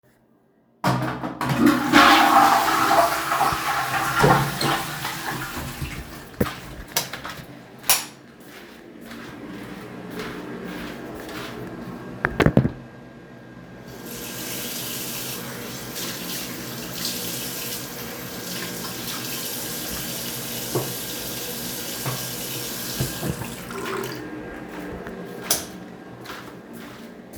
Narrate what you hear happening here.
I flushed the toilet and turned off the light. Then I walked into the bathroom where the extractor fan was working, washed my hands, and turned off the light.